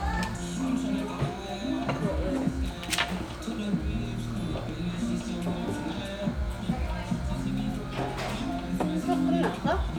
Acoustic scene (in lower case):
crowded indoor space